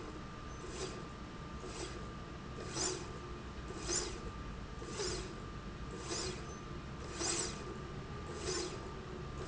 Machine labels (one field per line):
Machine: slide rail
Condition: normal